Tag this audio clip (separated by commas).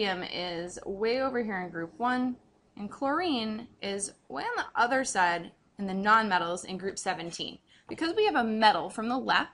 Speech